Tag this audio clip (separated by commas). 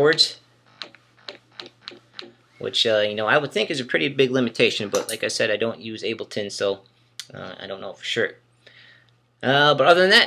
Speech